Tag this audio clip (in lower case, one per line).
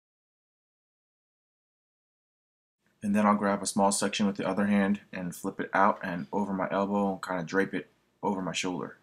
speech